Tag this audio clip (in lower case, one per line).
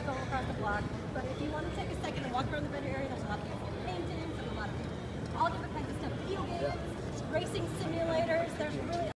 speech